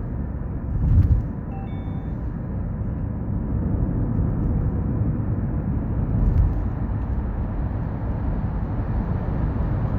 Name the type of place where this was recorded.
car